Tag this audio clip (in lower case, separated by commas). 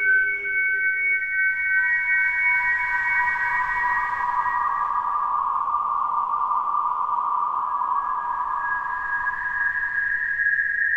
music